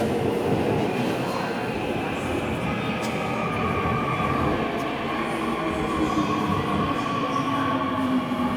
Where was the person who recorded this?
in a subway station